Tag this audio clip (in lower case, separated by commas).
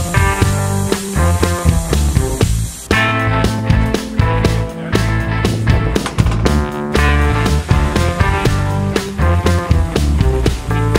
music, speech